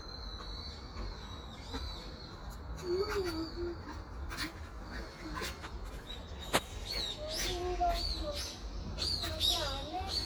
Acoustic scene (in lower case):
park